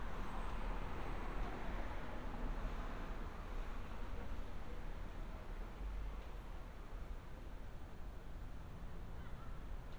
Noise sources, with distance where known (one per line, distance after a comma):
medium-sounding engine
unidentified human voice, far